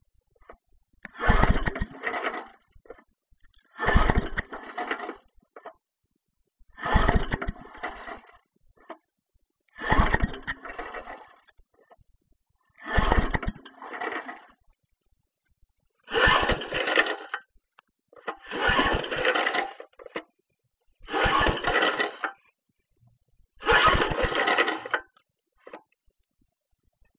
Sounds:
engine

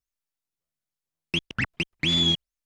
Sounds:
music
musical instrument
scratching (performance technique)

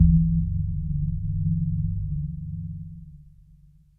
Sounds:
organ
music
musical instrument
keyboard (musical)

